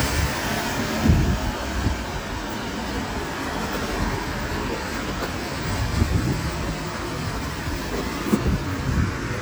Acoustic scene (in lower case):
street